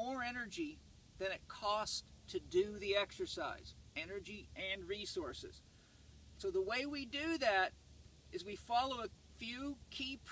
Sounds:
speech

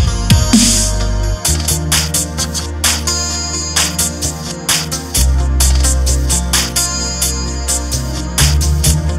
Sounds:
music
electronic music
dubstep

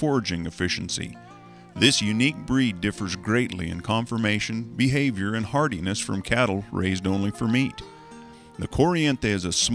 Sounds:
speech
music

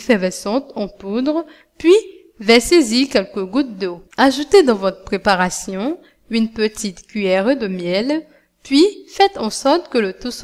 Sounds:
speech
dribble

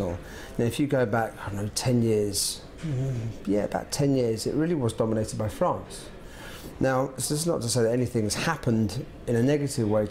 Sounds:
speech

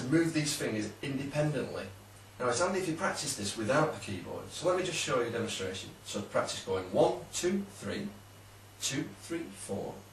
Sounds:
speech

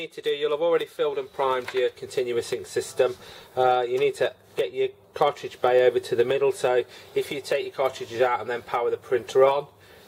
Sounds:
speech

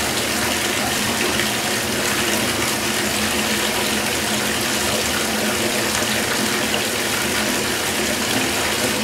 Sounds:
water
faucet

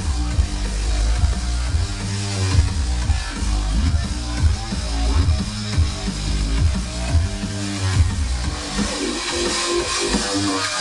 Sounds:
disco

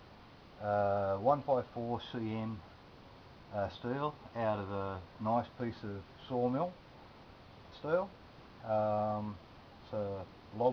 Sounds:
speech

